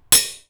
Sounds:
cutlery, dishes, pots and pans, home sounds

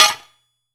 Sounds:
tools

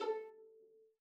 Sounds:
musical instrument, music, bowed string instrument

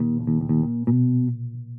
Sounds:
bass guitar, music, guitar, musical instrument, plucked string instrument

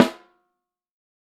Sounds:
music, musical instrument, percussion, snare drum, drum

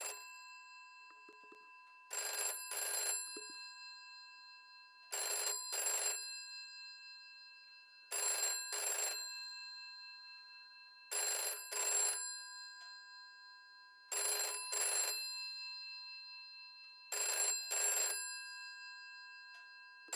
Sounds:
telephone, alarm

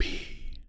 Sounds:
human voice, whispering

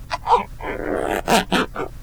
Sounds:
zipper (clothing), domestic sounds

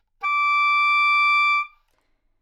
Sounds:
musical instrument, woodwind instrument, music

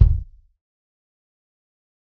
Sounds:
bass drum, percussion, drum, musical instrument, music

